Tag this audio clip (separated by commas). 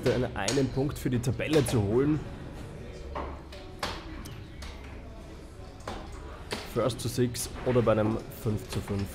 playing darts